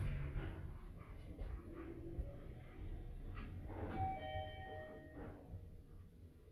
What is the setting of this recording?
elevator